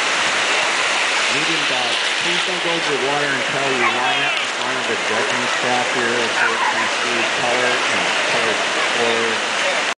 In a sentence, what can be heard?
Fast, running water with a man speaking with a muffled voice